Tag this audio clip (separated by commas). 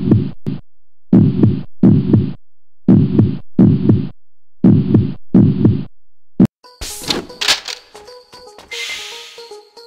Heart murmur, Music